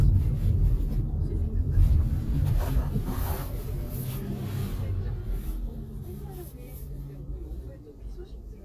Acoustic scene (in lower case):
car